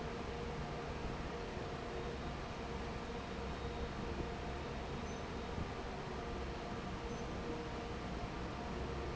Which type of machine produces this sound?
fan